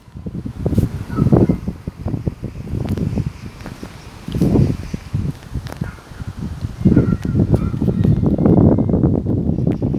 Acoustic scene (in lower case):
park